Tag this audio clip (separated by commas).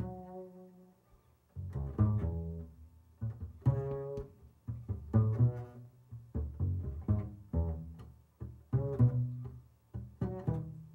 Plucked string instrument, playing double bass, Musical instrument, Music, Double bass